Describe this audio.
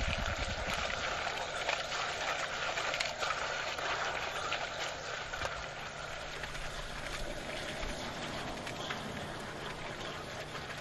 Water moving at a moderate pace